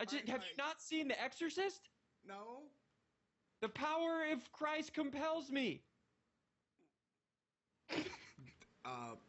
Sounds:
Speech, inside a large room or hall

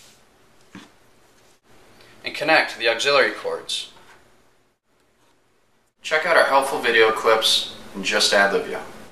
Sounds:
Speech

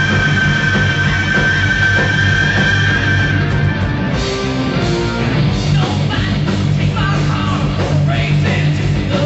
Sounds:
Music, Punk rock, Heavy metal, Rock and roll, Progressive rock

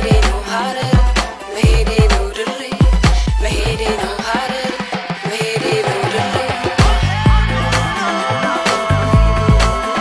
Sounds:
Dance music, Music

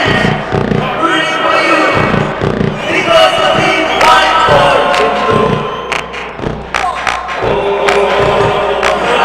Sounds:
Music, Mantra

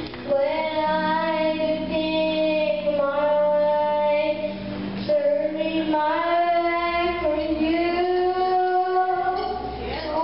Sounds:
Child singing, Music

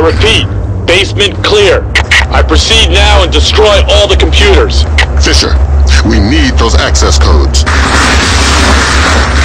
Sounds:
Speech

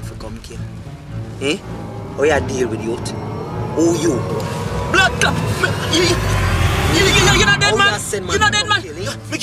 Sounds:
Speech, Music

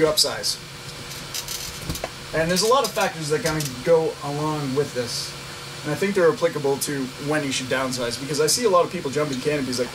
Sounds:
inside a large room or hall, Speech

